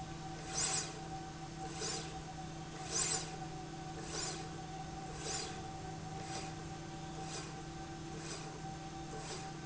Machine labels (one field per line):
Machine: slide rail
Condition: normal